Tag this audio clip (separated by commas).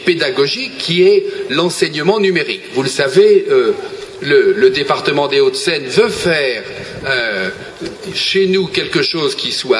Speech, Narration